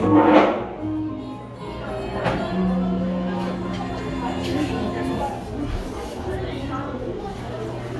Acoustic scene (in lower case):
cafe